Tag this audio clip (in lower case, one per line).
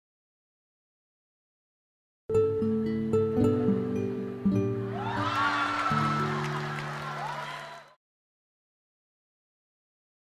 music